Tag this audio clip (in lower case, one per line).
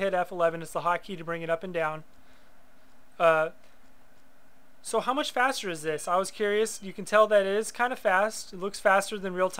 speech